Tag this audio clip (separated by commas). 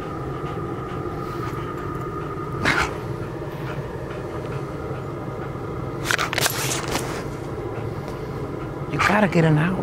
Animal, Speech